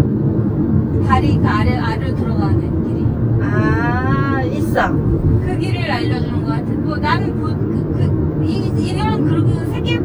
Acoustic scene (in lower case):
car